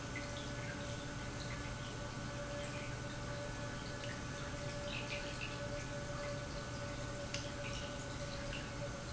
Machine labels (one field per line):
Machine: pump